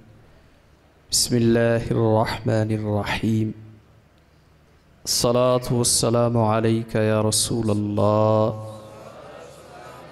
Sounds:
male speech, monologue, speech

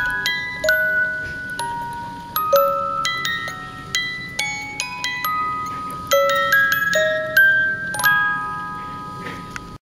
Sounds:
music

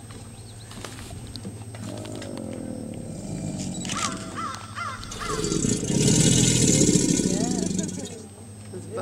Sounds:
alligators

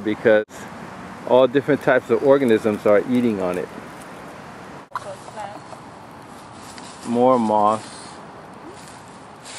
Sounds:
outside, rural or natural, speech

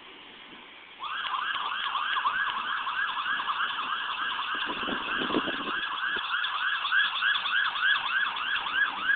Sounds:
fire engine, vehicle, engine

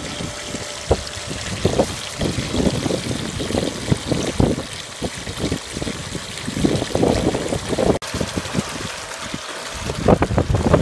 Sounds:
water, water tap

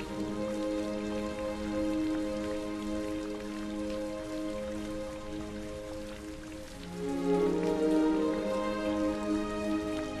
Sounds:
music, soundtrack music

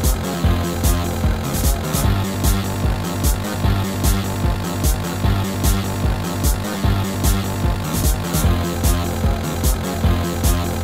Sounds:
music, video game music

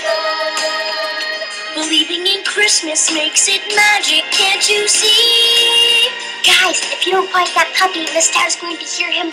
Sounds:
speech, exciting music, music

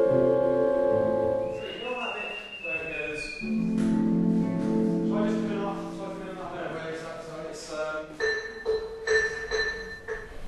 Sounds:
speech, music

